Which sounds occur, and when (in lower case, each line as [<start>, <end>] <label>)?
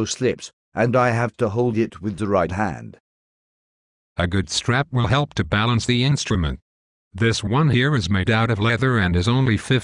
[0.00, 0.48] man speaking
[0.67, 2.96] man speaking
[4.12, 6.57] man speaking
[7.08, 9.83] man speaking